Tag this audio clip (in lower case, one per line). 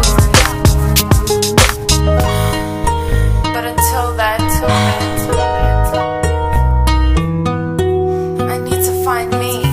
music